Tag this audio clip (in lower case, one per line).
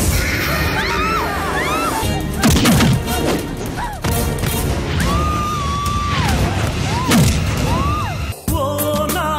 music
music of bollywood